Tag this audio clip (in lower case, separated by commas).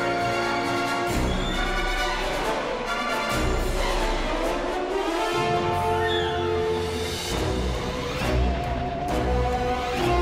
music